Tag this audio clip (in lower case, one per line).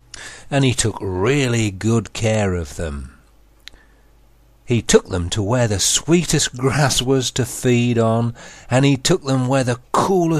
speech